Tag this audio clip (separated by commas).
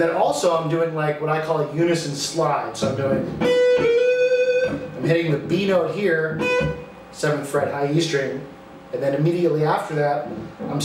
Musical instrument, Guitar, Plucked string instrument, Acoustic guitar, Speech